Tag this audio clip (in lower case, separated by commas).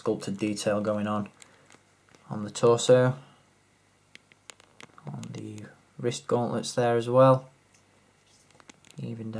speech, inside a small room